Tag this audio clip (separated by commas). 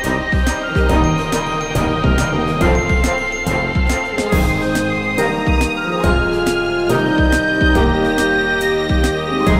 Music